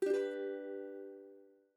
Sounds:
Plucked string instrument, Musical instrument, Music

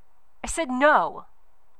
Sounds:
Speech, Female speech, Human voice

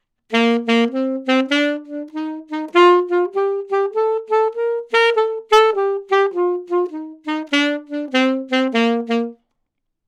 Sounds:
Musical instrument, woodwind instrument, Music

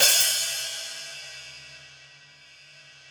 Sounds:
Cymbal, Hi-hat, Percussion, Music, Musical instrument

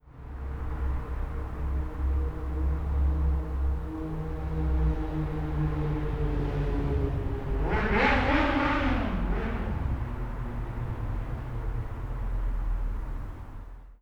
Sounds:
Motor vehicle (road), Motorcycle, revving, Vehicle, Engine

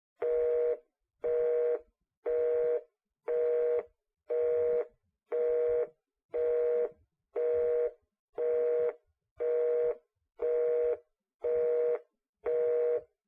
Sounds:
Telephone, Alarm

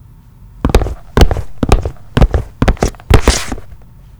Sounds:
Walk

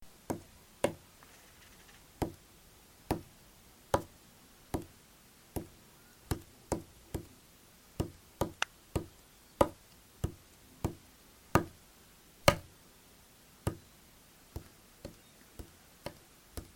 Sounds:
Tap

